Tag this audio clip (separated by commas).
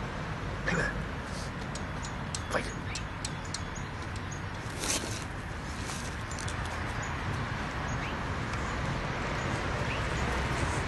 outside, rural or natural, Animal, Speech